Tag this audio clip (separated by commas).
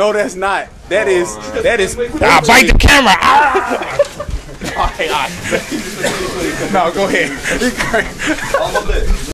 Speech